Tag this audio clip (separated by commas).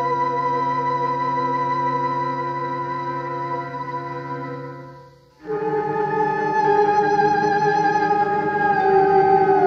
Scary music, Music